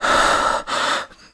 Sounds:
respiratory sounds, breathing

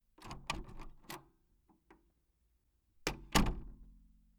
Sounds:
home sounds, door, slam

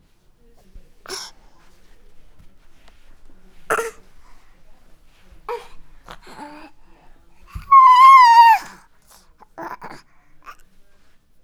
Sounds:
human voice, sobbing

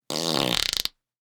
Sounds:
fart

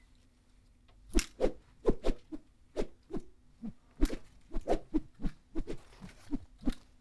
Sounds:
swoosh

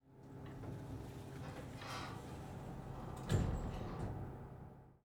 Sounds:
sliding door, door, domestic sounds

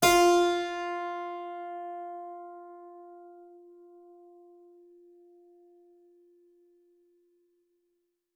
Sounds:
musical instrument, music, keyboard (musical)

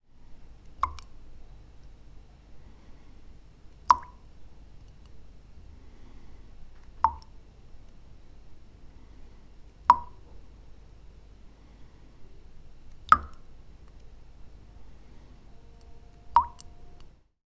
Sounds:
raindrop, rain, liquid, drip, water

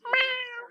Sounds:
animal, domestic animals, cat, meow

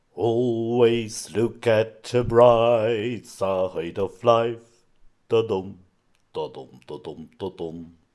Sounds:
male singing, singing, human voice

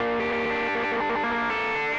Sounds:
guitar, musical instrument, plucked string instrument, music

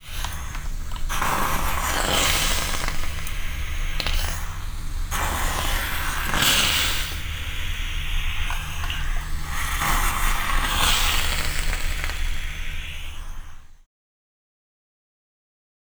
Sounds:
hiss

